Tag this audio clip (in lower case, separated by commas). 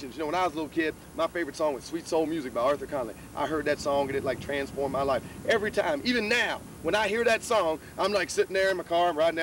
speech